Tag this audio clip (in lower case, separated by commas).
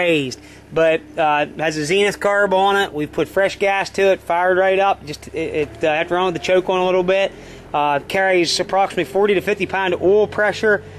engine, speech